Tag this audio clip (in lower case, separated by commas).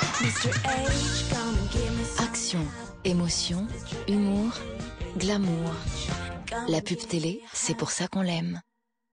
speech, music